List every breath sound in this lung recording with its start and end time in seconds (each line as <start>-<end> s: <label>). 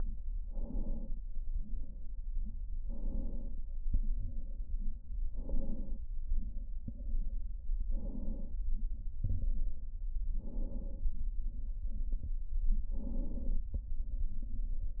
0.44-1.25 s: inhalation
2.79-3.61 s: inhalation
5.22-6.04 s: inhalation
7.82-8.63 s: inhalation
10.32-11.14 s: inhalation
12.90-13.72 s: inhalation